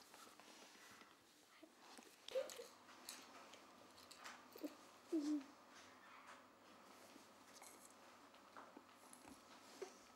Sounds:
pets, Animal

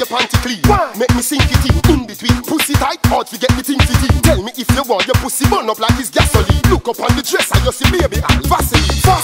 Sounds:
Music

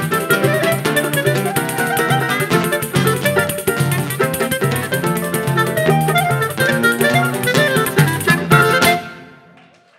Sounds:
Clarinet, Acoustic guitar, Guitar, Musical instrument, Plucked string instrument, Bowed string instrument, Music

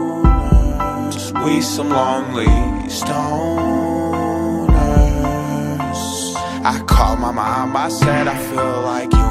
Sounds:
Music

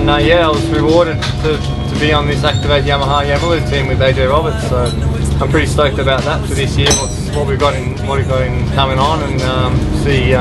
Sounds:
Music, Speech

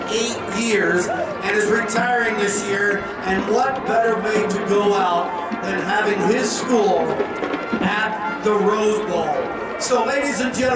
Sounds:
Music, Speech

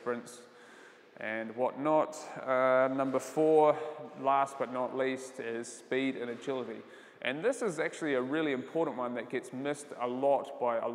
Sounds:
playing squash

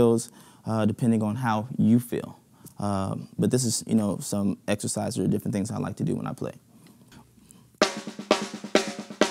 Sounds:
Music, Drum kit, Musical instrument, Speech, Drum

